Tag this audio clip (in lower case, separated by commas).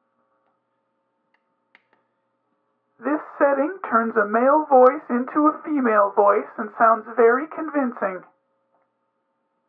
speech